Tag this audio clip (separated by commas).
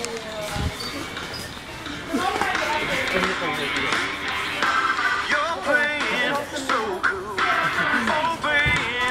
inside a public space, Speech, Music